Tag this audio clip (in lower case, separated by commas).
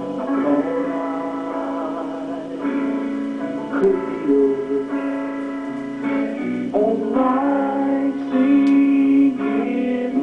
music